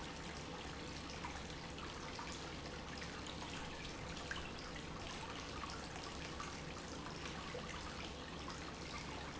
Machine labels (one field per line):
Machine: pump